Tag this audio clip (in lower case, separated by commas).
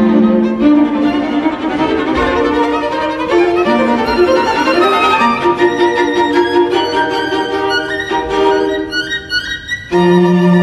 fiddle, orchestra, classical music, musical instrument, bowed string instrument